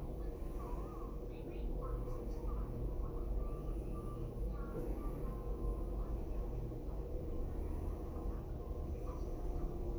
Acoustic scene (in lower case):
elevator